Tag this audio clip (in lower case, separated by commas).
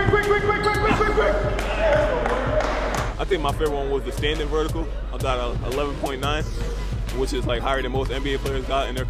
music, speech